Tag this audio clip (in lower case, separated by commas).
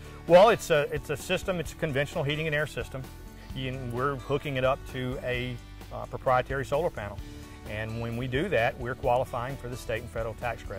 music, speech